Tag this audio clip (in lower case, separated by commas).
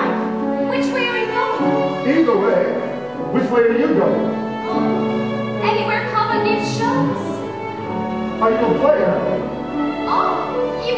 speech, music